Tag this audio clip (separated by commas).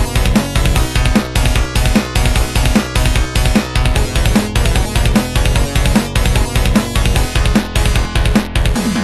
Music